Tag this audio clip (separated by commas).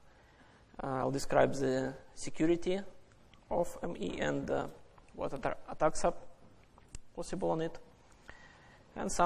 Speech